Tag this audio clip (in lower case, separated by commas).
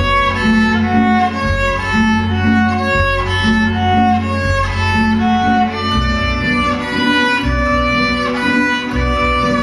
music, musical instrument, violin